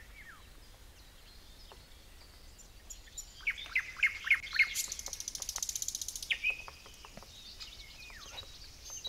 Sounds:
animal
environmental noise

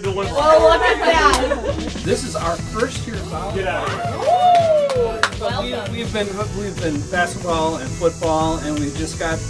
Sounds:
music
speech

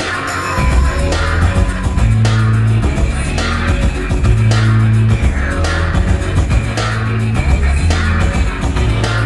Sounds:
independent music
music
rock music

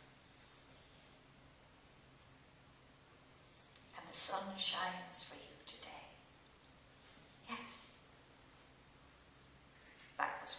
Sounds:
speech

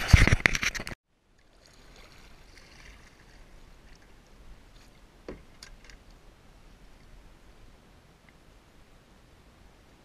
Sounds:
water vehicle
kayak
vehicle

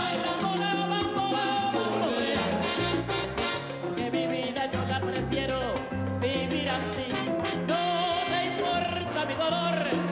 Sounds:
pop music
music

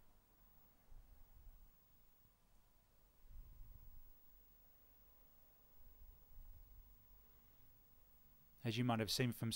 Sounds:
speech

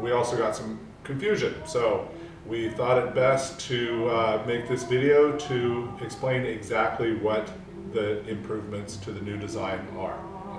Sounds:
speech

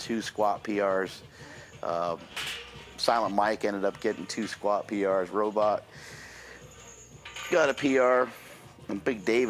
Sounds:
speech

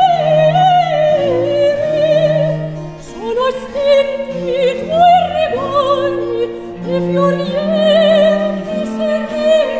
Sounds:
opera
singing
music
classical music

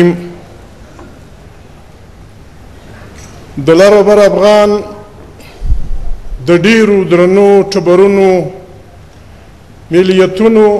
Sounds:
man speaking
speech
narration

